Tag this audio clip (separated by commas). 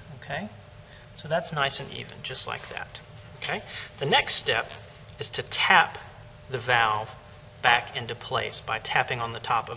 Speech